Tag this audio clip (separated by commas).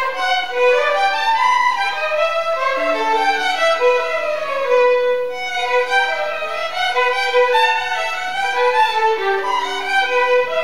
Violin, Music, Musical instrument